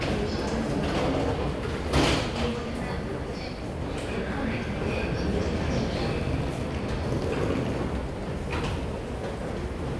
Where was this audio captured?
in a subway station